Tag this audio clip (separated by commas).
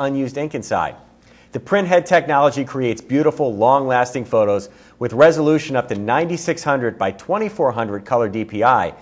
Speech